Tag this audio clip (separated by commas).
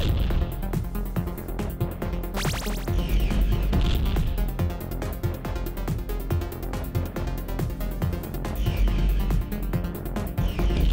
Music